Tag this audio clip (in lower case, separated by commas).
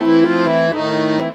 accordion, music, musical instrument